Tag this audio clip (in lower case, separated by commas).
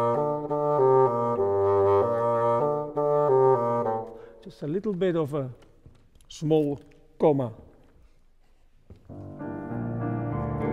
playing bassoon